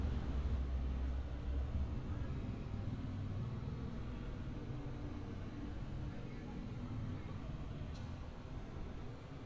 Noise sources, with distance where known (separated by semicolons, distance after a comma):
background noise